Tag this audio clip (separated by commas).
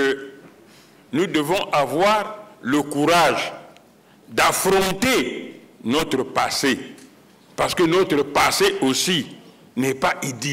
monologue, Speech